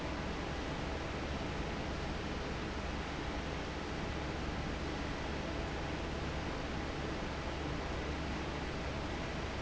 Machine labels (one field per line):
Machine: fan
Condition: normal